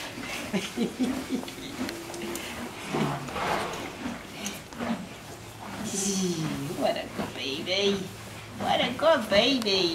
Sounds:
Speech

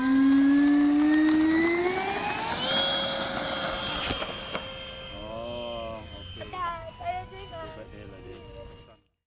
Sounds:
Speech

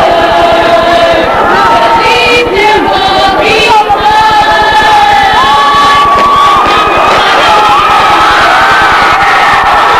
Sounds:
Speech

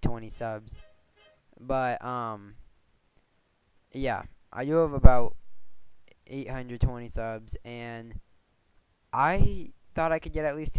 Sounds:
Speech

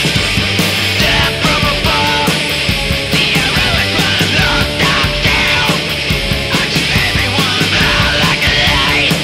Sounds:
Music

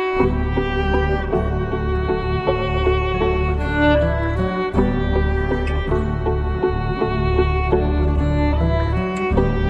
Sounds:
Music, Pizzicato, Musical instrument, Violin

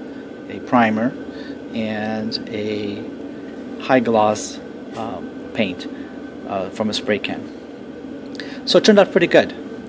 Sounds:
Speech, inside a small room

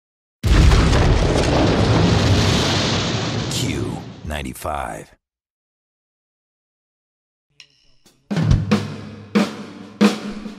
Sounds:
Musical instrument, Music, Speech

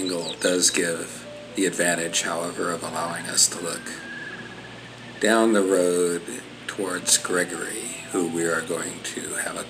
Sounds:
Speech, Music

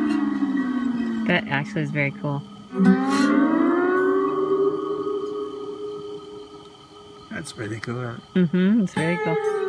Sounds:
Musical instrument, Plucked string instrument, Guitar, Speech, Music

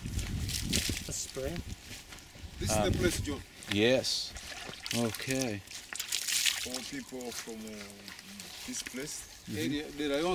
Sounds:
Speech

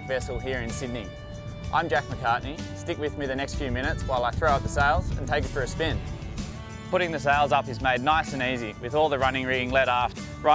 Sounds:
Vehicle, Speech, Music

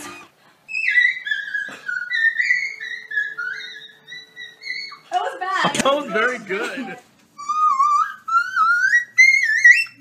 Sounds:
people whistling

